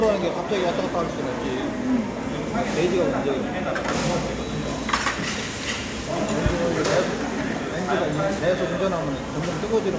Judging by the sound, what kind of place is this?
restaurant